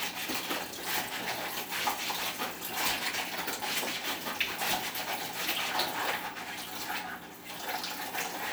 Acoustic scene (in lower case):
kitchen